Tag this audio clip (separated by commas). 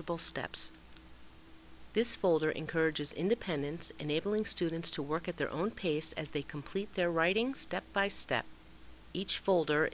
Speech